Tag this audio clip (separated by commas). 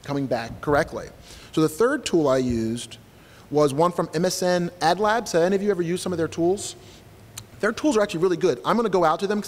Speech